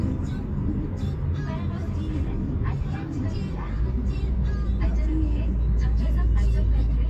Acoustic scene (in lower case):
car